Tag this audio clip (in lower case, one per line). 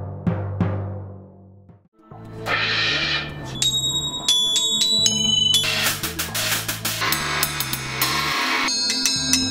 hi-hat
cymbal